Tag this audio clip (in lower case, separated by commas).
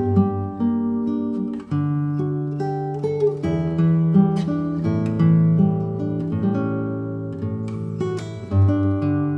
tender music, guitar, plucked string instrument, acoustic guitar, musical instrument, exciting music, blues, music